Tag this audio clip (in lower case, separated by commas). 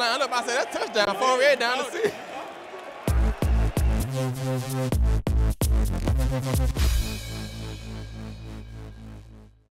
speech, music